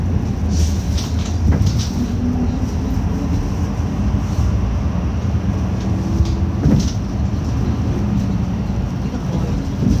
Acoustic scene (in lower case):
bus